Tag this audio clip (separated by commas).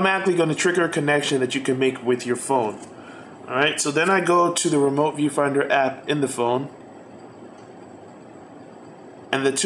Speech